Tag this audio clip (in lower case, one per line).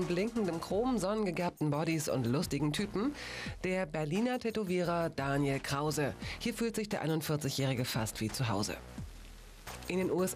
speech